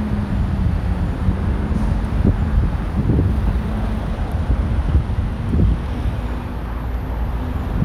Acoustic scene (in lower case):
street